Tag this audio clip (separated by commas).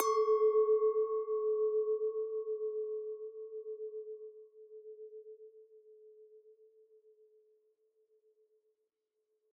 Glass, Chink